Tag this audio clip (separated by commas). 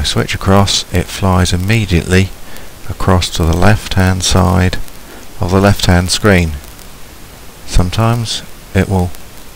Speech